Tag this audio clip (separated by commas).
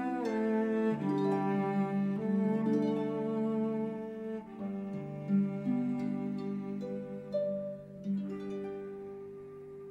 Cello, Music